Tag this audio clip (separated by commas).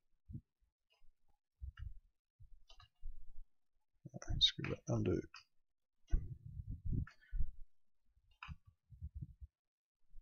Clicking